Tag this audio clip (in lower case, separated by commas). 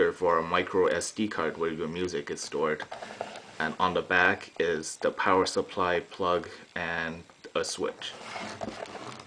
speech